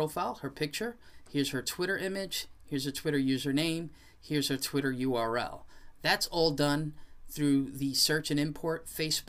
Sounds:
Speech

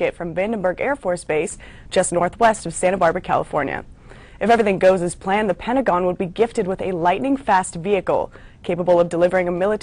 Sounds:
Speech

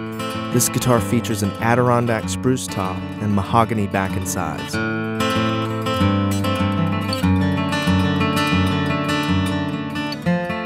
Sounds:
Strum, Musical instrument, Music, Guitar, Plucked string instrument, Speech

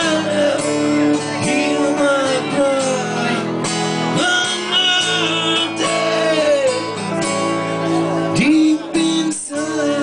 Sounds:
Music

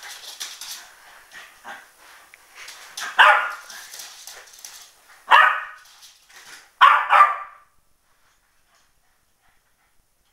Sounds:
Animal, Bark, dog barking, Domestic animals, Dog

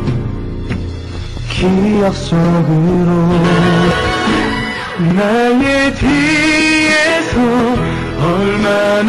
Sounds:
Music, Male singing

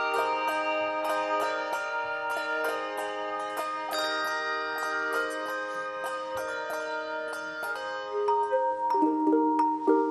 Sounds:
inside a large room or hall, Music

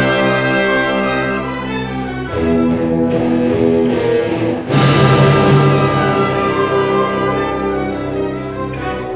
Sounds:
Guitar, Bass guitar, Music, Musical instrument, Orchestra

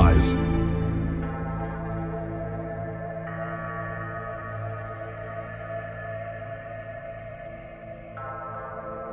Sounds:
Music, Speech

